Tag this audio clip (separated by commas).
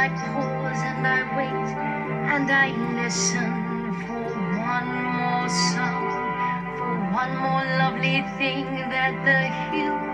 Music